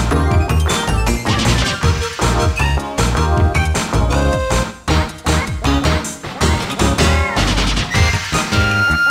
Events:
0.0s-9.1s: music
2.6s-2.8s: sound effect
3.5s-3.6s: sound effect
7.0s-7.6s: sound effect

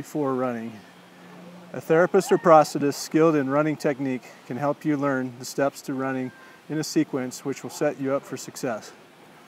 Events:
0.0s-0.8s: male speech
0.0s-9.4s: wind
1.0s-2.0s: mechanisms
1.1s-1.4s: breathing
1.7s-4.2s: male speech
2.1s-2.7s: human voice
4.2s-4.5s: breathing
4.4s-6.4s: male speech
6.2s-6.6s: brief tone
6.3s-6.7s: breathing
6.7s-9.0s: male speech

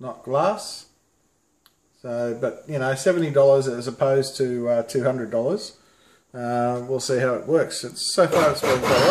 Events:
0.0s-0.8s: man speaking
0.0s-9.1s: mechanisms
1.6s-1.7s: tick
2.0s-5.7s: man speaking
5.7s-6.2s: breathing
6.3s-9.1s: man speaking
8.1s-9.1s: blender

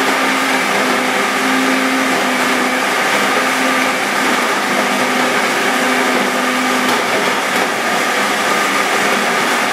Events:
0.0s-9.7s: blender

